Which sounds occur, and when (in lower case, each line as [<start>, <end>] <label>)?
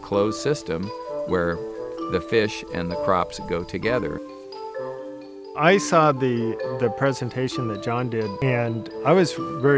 [0.00, 9.75] background noise
[0.00, 9.75] music
[0.09, 0.90] man speaking
[1.28, 1.56] man speaking
[2.08, 2.62] man speaking
[2.72, 4.15] man speaking
[5.56, 6.52] man speaking
[6.65, 8.85] man speaking
[9.01, 9.41] man speaking
[9.62, 9.75] man speaking